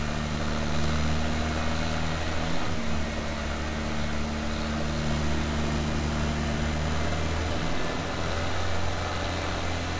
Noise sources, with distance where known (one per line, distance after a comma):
small-sounding engine